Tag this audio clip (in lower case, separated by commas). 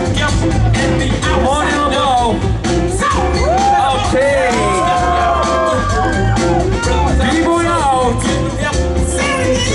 speech, music